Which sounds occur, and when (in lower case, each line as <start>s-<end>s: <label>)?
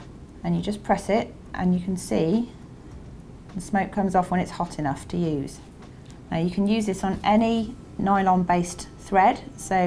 0.0s-9.8s: mechanisms
0.4s-1.3s: woman speaking
1.5s-2.5s: woman speaking
2.8s-3.1s: generic impact sounds
3.5s-3.8s: generic impact sounds
3.7s-5.7s: woman speaking
5.1s-5.2s: generic impact sounds
5.8s-6.1s: generic impact sounds
6.3s-7.7s: woman speaking
7.0s-7.4s: generic impact sounds
7.5s-9.8s: music
8.0s-8.6s: woman speaking
9.1s-9.4s: woman speaking
9.7s-9.8s: woman speaking